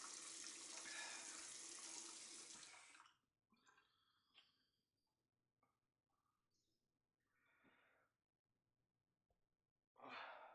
Water dripping from a faucet is stopped